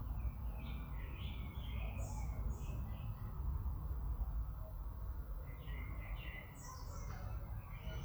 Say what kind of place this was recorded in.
park